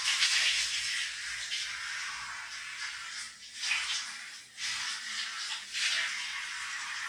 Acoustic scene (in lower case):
restroom